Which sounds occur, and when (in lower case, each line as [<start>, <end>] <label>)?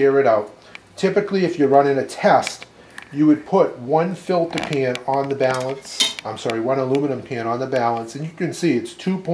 [0.00, 0.55] man speaking
[0.00, 9.33] background noise
[0.42, 0.55] generic impact sounds
[0.70, 0.83] generic impact sounds
[1.04, 2.66] man speaking
[2.42, 2.75] generic impact sounds
[2.95, 3.06] generic impact sounds
[3.06, 5.81] man speaking
[4.46, 4.82] generic impact sounds
[4.91, 5.05] generic impact sounds
[5.13, 5.79] generic impact sounds
[5.86, 6.25] clang
[6.17, 6.30] generic impact sounds
[6.25, 9.33] man speaking
[6.45, 6.61] generic impact sounds
[6.94, 7.03] generic impact sounds
[7.71, 7.87] generic impact sounds